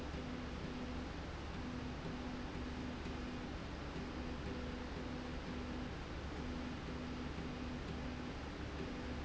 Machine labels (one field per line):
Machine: slide rail